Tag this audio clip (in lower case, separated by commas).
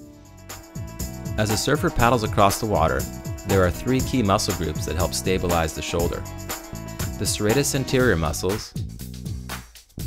music, speech